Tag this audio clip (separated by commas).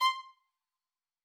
Musical instrument, Bowed string instrument, Music